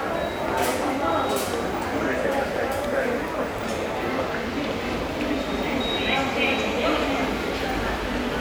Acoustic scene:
subway station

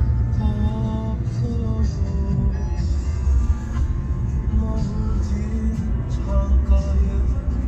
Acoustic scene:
car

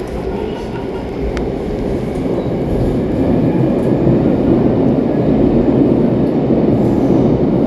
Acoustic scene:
subway train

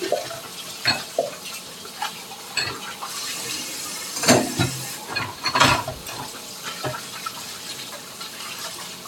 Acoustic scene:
kitchen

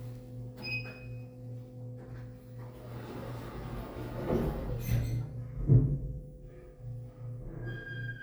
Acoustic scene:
elevator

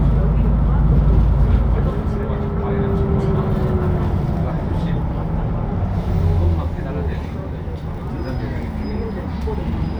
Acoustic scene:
bus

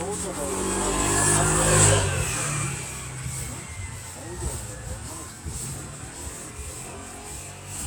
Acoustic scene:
residential area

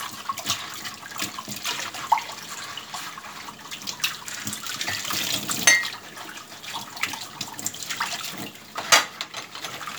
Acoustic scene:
kitchen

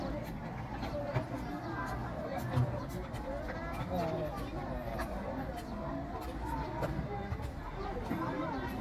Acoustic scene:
park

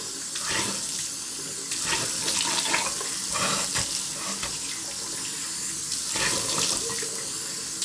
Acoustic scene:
restroom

